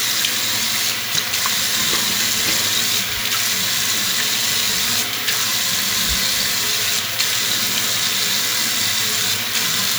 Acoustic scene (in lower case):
restroom